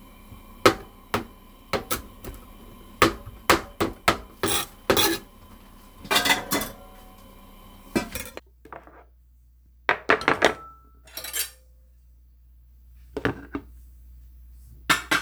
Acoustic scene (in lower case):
kitchen